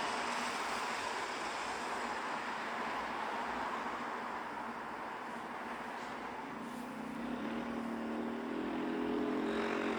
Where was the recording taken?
on a street